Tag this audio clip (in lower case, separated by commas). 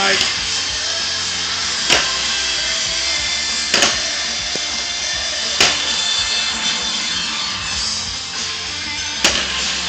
music, speech, skateboard